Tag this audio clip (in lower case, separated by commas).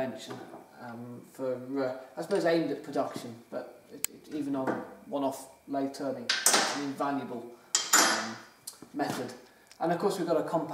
tools, speech